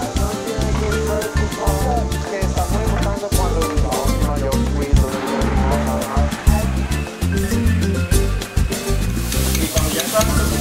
Tropical music with clacking at end